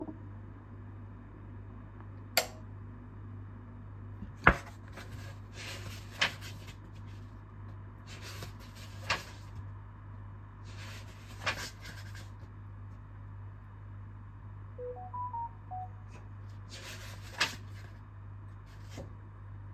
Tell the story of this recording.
I switched on the light and started reading a book, when suddenly got a notification